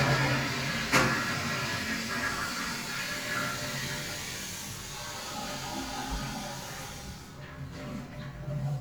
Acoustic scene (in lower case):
restroom